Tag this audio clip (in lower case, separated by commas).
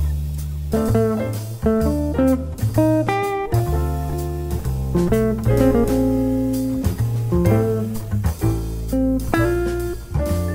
musical instrument, keyboard (musical), music, piano, jazz, guitar